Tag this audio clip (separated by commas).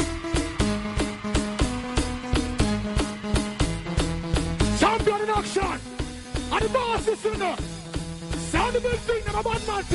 Music, Speech